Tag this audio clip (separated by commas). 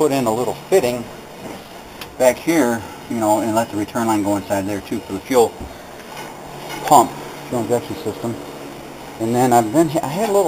Speech